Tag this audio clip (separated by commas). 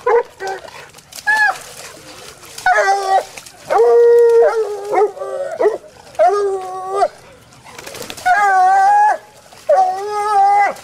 dog baying